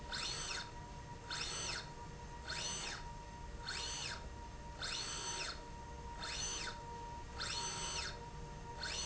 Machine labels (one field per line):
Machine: slide rail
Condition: normal